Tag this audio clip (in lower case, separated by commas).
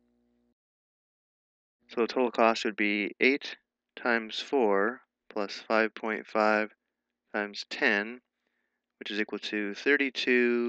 speech